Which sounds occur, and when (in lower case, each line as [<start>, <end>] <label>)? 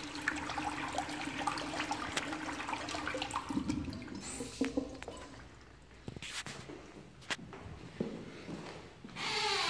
[0.00, 6.15] toilet flush
[6.17, 6.66] surface contact
[6.63, 6.94] footsteps
[7.18, 7.38] surface contact
[7.45, 7.72] footsteps
[7.96, 8.24] footsteps
[8.19, 8.95] surface contact
[8.41, 8.82] footsteps
[9.01, 9.18] footsteps
[9.04, 9.65] creak